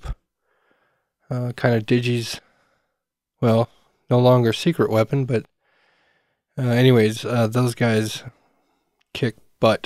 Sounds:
Speech

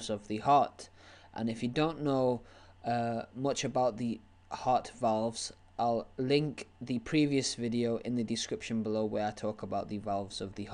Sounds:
Speech

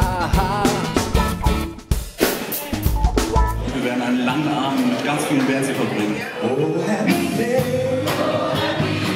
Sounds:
Rhythm and blues, Speech, Ska, Music

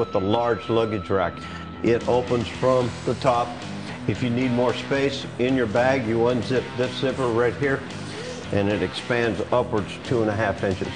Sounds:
Speech, Music

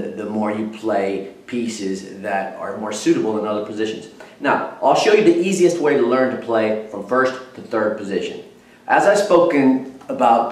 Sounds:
Speech

